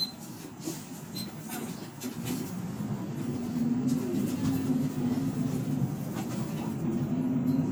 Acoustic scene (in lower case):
bus